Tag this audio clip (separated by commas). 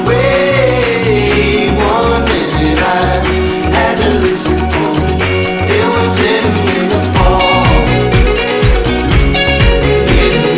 Music